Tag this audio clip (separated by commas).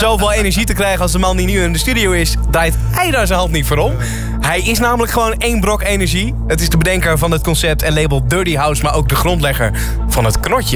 Music, Speech, Electronic music